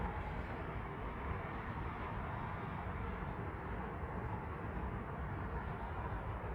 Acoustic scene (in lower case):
street